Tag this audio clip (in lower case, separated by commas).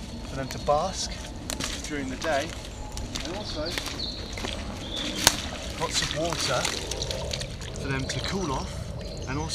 animal, trickle, water, speech